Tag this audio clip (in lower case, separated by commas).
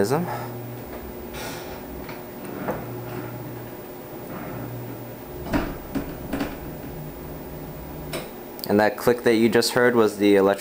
door, speech